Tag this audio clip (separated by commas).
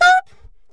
Musical instrument, Music, Wind instrument